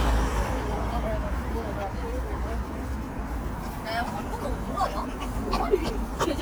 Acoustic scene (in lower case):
street